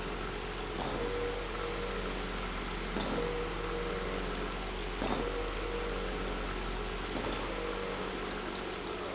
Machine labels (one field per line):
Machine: pump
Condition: abnormal